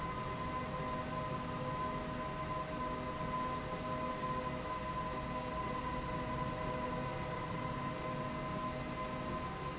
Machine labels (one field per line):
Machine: slide rail